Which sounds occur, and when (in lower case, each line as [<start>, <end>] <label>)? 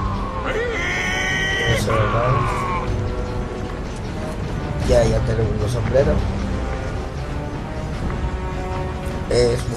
[0.00, 9.75] music
[0.00, 9.75] video game sound
[0.42, 1.82] shout
[1.82, 2.86] human voice
[1.84, 2.58] male speech
[4.65, 6.28] male speech
[9.26, 9.75] male speech